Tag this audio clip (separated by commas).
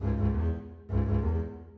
Music, Bowed string instrument, Musical instrument